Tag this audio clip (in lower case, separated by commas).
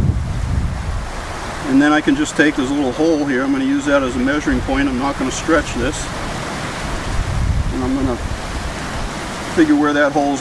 speech, waves